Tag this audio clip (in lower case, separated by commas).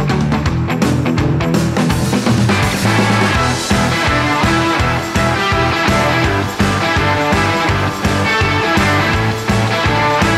progressive rock